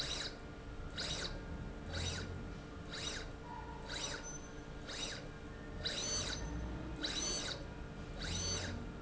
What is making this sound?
slide rail